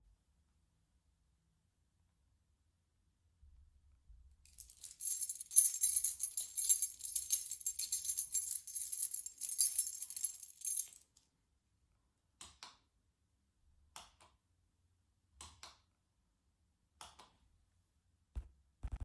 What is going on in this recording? I left my phone on a surface in the hallway. I picked up my keychain and jingled/shook it for several seconds. Then I walked to the light switch on the wall and flipped it on and off twice, creating clear clicking sounds.